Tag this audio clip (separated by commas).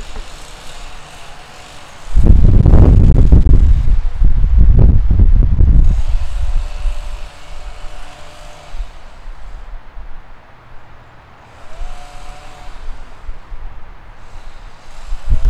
Engine